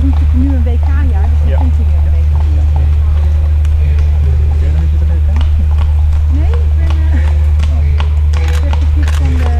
A female and male engaging in conversation followed by clip-clop sounds and photographer equipment flashes in the background